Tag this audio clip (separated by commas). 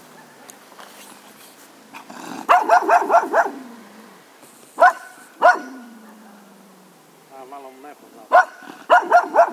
Domestic animals, Dog, Bow-wow, Speech, Bark, Animal